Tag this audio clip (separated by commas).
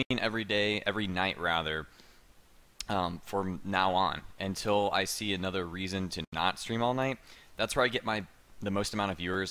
Speech